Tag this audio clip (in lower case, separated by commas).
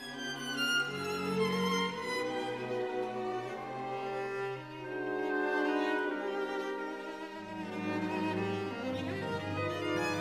violin, musical instrument, music